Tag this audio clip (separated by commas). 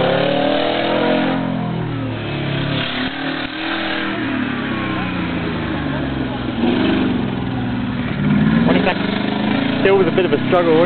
Medium engine (mid frequency), Speech, revving, Vehicle, Engine